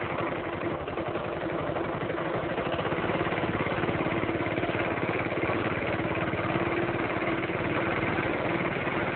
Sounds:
idling, vehicle

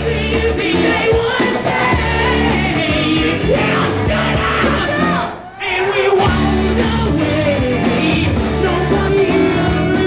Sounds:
music, rock and roll

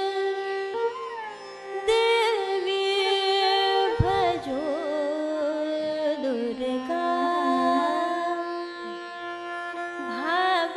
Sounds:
music, carnatic music, singing, music of asia

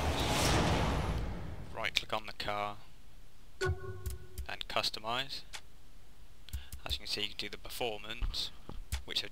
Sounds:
speech

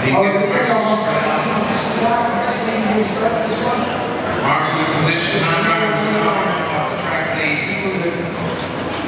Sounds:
speech

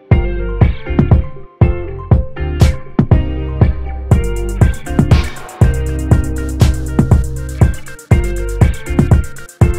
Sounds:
music, pop music

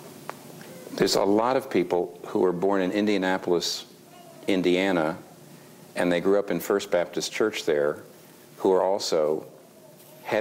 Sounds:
speech

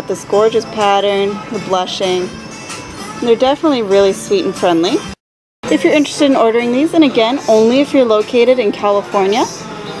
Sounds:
music, speech

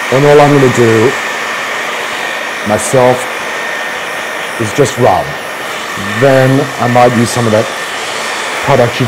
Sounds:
speech, inside a small room

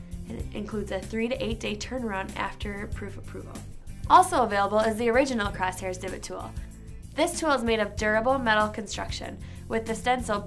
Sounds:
speech, music

